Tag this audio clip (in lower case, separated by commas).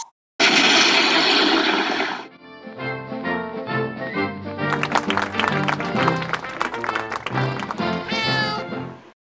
music, animal